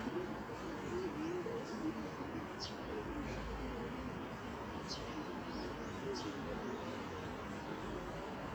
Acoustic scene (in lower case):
residential area